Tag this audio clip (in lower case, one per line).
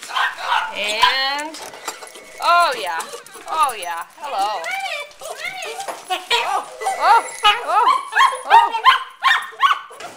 speech